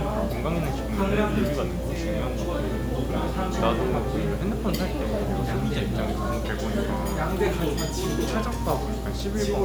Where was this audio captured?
in a crowded indoor space